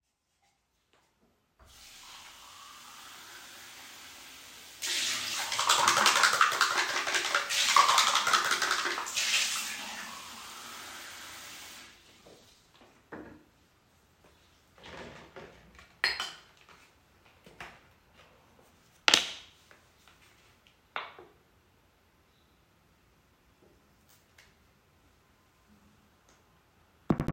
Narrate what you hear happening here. I turned on the tap water from basin to rinsed the toothbrush and mouth rinsing cup, hitting the handwashing soap dispenser while I picked up the toothpaste. I opened the toothpaste squeezed it out and put it on the toothbrush.